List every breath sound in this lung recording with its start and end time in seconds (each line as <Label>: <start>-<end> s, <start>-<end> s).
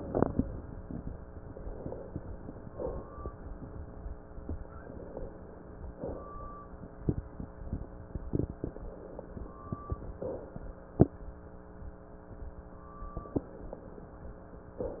Inhalation: 1.47-2.71 s, 4.72-5.95 s, 8.59-10.21 s, 13.14-14.76 s
Exhalation: 2.71-3.26 s, 5.95-6.51 s, 10.21-10.90 s, 14.76-15.00 s